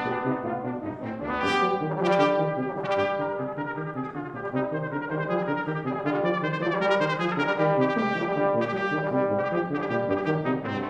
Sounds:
French horn, Music, playing french horn, Brass instrument

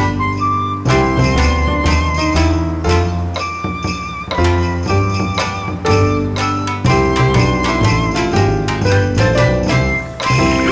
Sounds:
Music, Jingle bell

